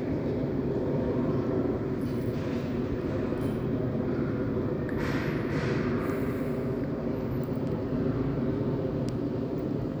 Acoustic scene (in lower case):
residential area